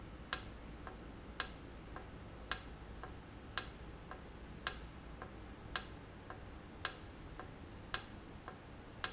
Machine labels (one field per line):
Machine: valve